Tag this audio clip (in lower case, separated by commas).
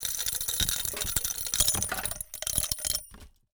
domestic sounds, coin (dropping)